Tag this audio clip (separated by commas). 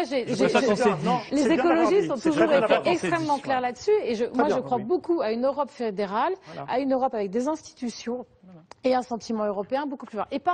Speech